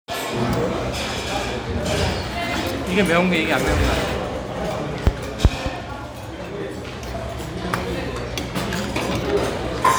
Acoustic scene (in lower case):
restaurant